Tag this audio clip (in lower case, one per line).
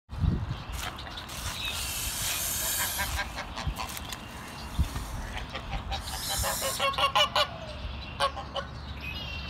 goose honking